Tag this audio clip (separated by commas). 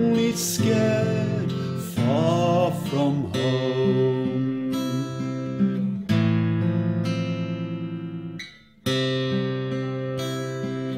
inside a small room, Music